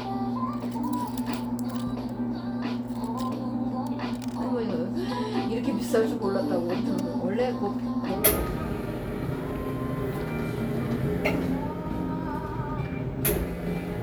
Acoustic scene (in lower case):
cafe